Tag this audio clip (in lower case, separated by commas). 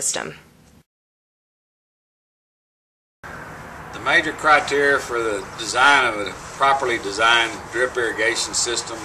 speech